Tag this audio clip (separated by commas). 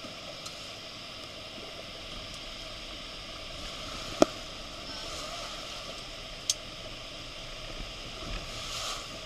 Sailboat, Water vehicle